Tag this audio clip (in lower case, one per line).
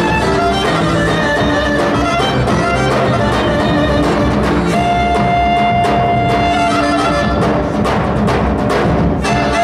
music
dance music